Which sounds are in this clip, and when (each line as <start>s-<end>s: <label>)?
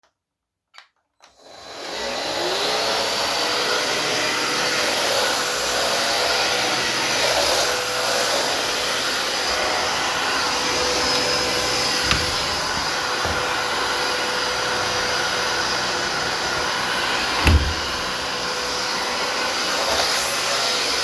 0.1s-21.0s: vacuum cleaner
12.0s-12.2s: window
17.4s-17.6s: window